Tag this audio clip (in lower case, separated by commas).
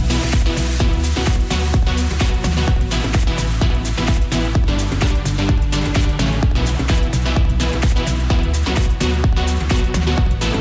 music